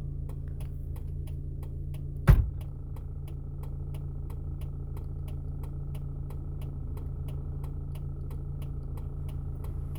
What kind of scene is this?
car